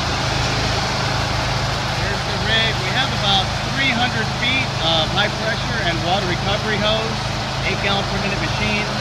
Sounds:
Speech

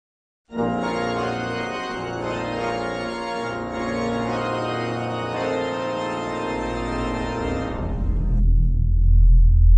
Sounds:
Music, Organ

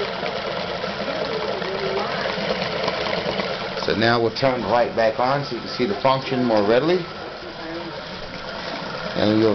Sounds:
Trickle

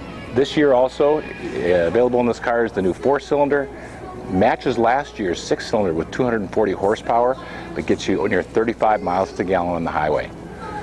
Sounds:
Speech, Music

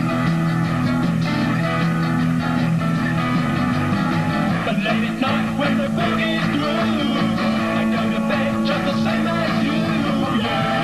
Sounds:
Music

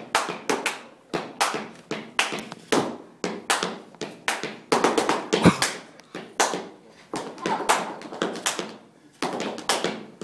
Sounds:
inside a large room or hall

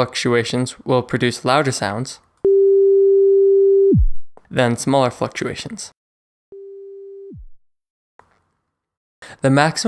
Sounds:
Busy signal, Speech

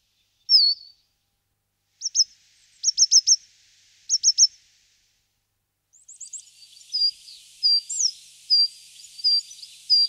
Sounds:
black capped chickadee calling

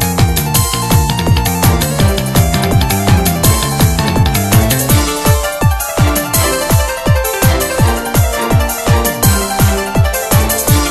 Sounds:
Music

